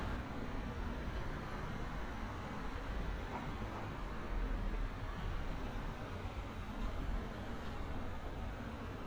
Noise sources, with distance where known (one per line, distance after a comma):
background noise